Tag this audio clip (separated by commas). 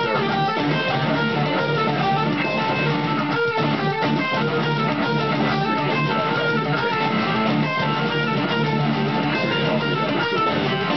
Musical instrument, Music, Strum, Electric guitar, Plucked string instrument, Guitar